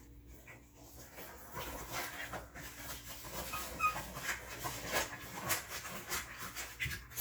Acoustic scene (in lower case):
kitchen